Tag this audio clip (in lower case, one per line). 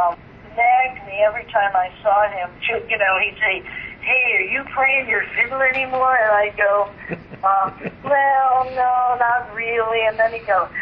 speech